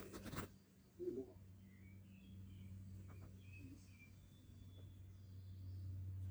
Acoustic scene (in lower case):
park